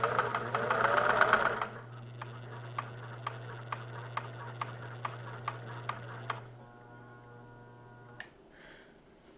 Humming and vibrating from a sewing machine